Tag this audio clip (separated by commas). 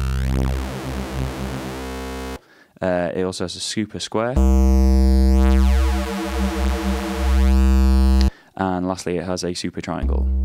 playing synthesizer